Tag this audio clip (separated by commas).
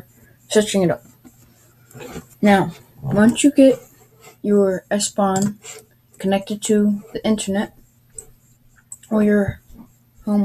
Speech